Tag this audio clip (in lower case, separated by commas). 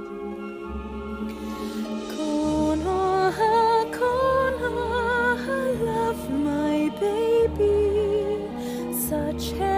lullaby, music